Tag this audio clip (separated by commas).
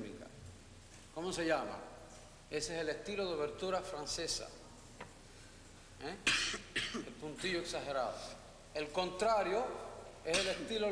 Speech